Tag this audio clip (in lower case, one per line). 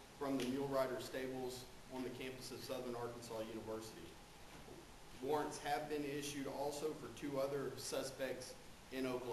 speech